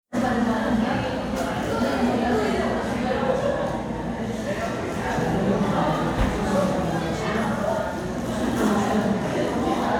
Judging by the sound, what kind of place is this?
crowded indoor space